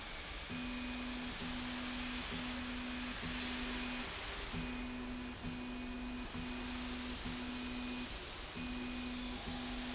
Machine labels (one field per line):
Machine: slide rail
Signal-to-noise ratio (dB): 0 dB